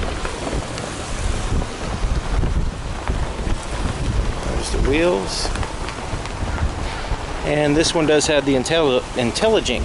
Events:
[0.00, 9.84] background noise
[0.00, 9.84] wind noise (microphone)
[1.44, 2.57] male speech
[4.44, 7.30] male speech
[7.29, 7.41] tick
[8.26, 8.86] male speech

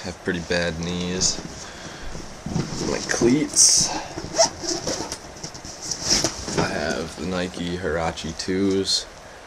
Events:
[0.00, 1.31] man speaking
[0.00, 9.45] background noise
[0.26, 0.68] surface contact
[0.74, 1.06] generic impact sounds
[1.29, 1.49] generic impact sounds
[1.55, 2.12] gasp
[1.68, 1.88] generic impact sounds
[2.02, 2.24] generic impact sounds
[2.42, 3.24] surface contact
[2.46, 2.70] generic impact sounds
[2.77, 3.94] man speaking
[3.70, 3.87] generic impact sounds
[3.96, 4.39] breathing
[4.01, 4.25] generic impact sounds
[4.16, 4.85] zipper (clothing)
[4.90, 5.16] generic impact sounds
[5.33, 5.70] generic impact sounds
[5.76, 6.17] surface contact
[5.85, 6.26] generic impact sounds
[6.47, 6.66] generic impact sounds
[6.49, 8.98] man speaking
[6.83, 6.99] generic impact sounds
[7.49, 7.72] generic impact sounds
[8.55, 8.74] generic impact sounds

